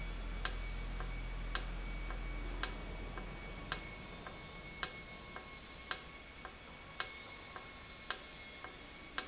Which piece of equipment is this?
valve